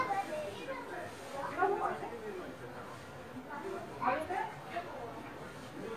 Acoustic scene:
residential area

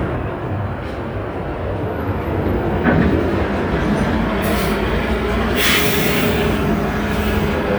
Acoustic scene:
street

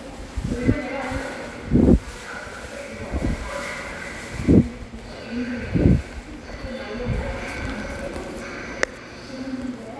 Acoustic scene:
subway station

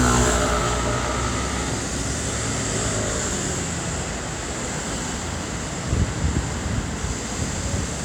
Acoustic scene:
street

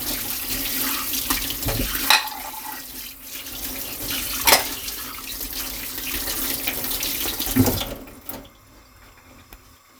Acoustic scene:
kitchen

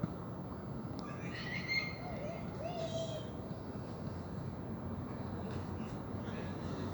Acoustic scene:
park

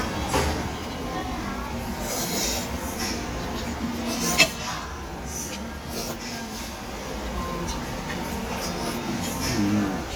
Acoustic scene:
restaurant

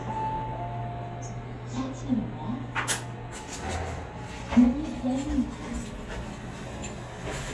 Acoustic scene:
elevator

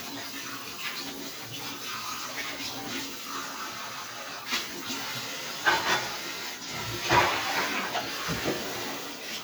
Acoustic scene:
kitchen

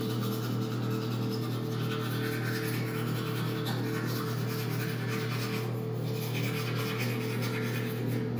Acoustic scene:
restroom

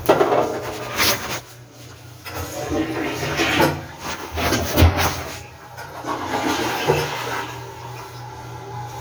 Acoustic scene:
restroom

